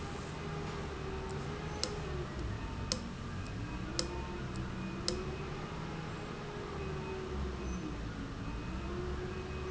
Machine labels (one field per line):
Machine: valve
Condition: abnormal